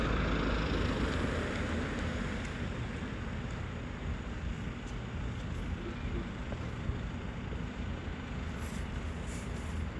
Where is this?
on a street